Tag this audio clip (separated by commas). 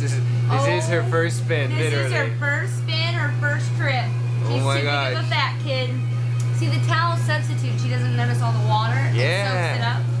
Speech